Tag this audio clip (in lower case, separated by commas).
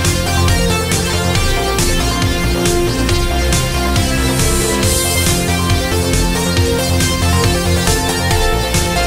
music